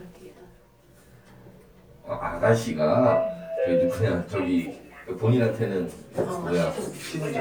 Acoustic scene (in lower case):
elevator